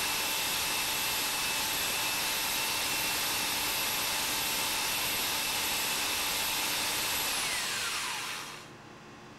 An engine idles and hums then shuts off